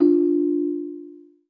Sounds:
Alarm, Ringtone, Telephone

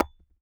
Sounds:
Tap, Tools, Hammer

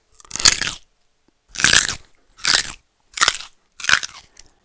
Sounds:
mastication

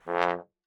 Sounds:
Musical instrument, Brass instrument, Music

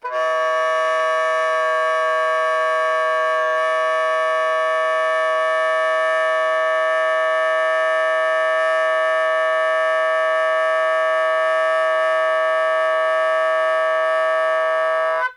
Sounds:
woodwind instrument, Musical instrument, Music

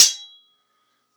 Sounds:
home sounds, Cutlery

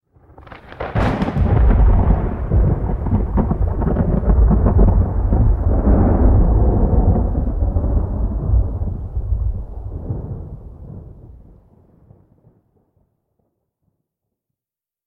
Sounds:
Thunderstorm, Thunder

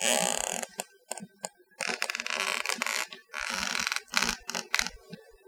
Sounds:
Squeak

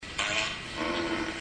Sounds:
Fart

